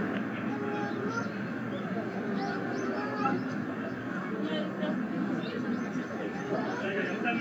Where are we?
in a residential area